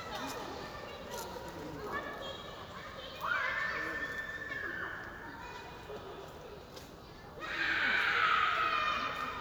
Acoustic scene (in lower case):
park